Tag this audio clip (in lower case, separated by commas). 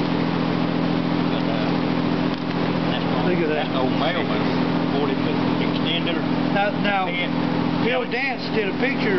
vehicle, speech